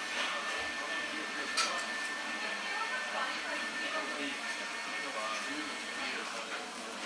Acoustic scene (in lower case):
cafe